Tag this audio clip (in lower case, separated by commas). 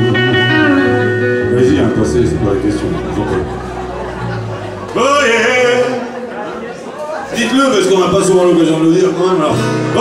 music, speech